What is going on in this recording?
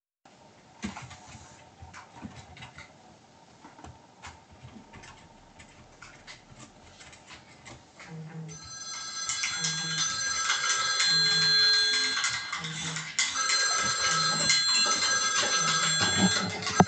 Someone is doing something on the computer. At the sametime a cup of coffee ist stirred when a mobile phone start to ring.